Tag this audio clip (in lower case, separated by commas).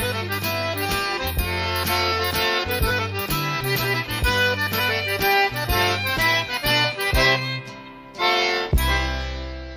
music, accordion